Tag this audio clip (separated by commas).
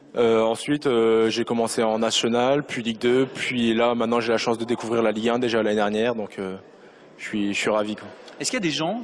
Speech